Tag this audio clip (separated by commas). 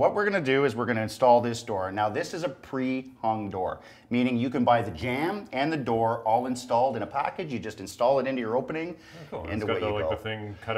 Speech